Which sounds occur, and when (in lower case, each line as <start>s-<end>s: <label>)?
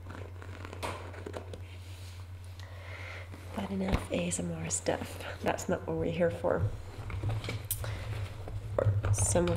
0.0s-9.5s: mechanisms
0.0s-1.5s: scratch
0.8s-1.1s: generic impact sounds
1.6s-2.3s: breathing
2.6s-3.5s: breathing
3.5s-6.7s: woman speaking
3.9s-4.2s: generic impact sounds
7.0s-7.9s: scratch
7.7s-7.9s: generic impact sounds
7.8s-8.4s: breathing
8.8s-9.1s: generic impact sounds
9.0s-9.5s: woman speaking